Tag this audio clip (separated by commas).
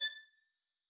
Bowed string instrument, Musical instrument, Music